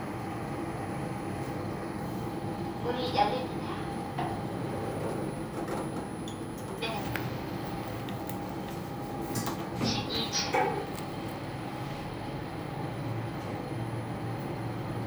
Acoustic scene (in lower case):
elevator